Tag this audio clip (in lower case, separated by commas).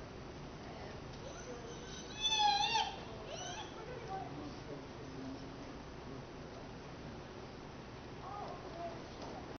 speech